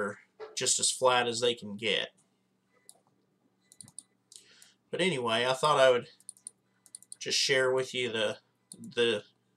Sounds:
Clicking

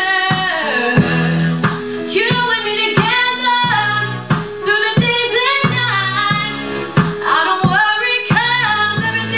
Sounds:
Music, Female singing

